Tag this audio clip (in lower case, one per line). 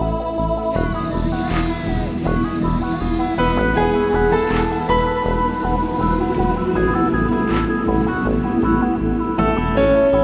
music
new-age music
background music